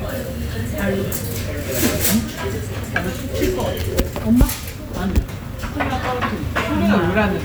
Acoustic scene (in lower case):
restaurant